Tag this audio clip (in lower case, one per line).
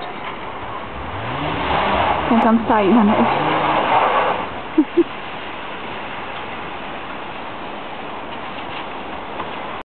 car
motor vehicle (road)
speech
vehicle